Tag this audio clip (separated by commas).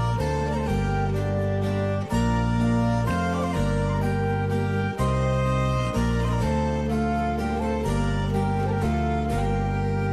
Music, Harpsichord